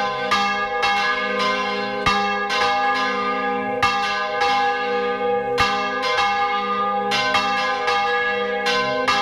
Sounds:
church bell ringing

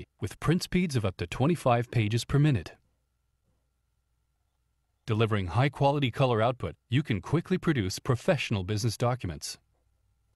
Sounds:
Speech

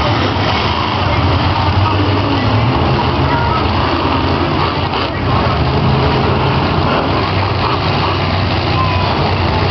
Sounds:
Vehicle, Speech

